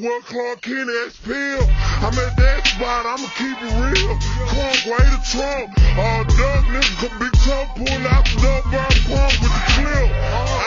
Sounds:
hip hop music, music

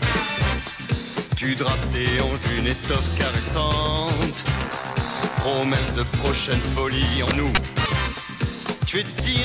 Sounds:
music

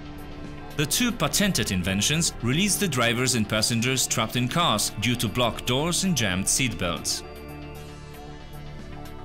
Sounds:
speech, music

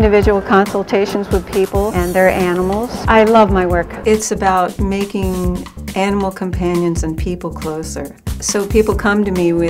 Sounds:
music, speech

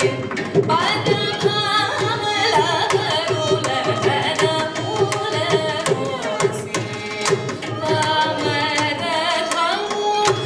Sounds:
percussion, tabla, drum

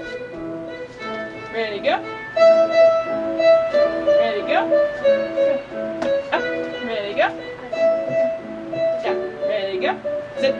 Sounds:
musical instrument, music, speech, violin

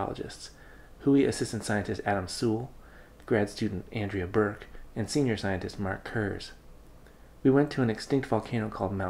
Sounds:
speech

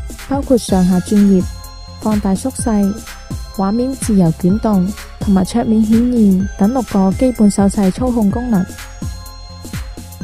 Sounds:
speech, music

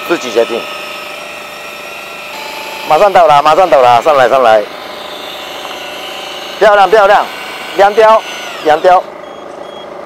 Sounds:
drill, outside, rural or natural, speech

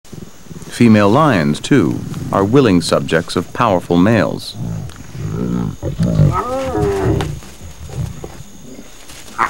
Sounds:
outside, rural or natural, wild animals, animal, speech

